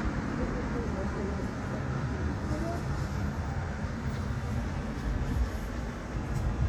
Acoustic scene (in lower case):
street